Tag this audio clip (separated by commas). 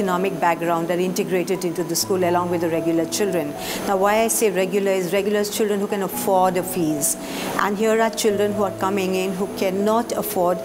Speech, Music